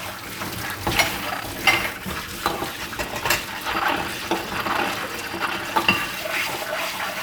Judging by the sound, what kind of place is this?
kitchen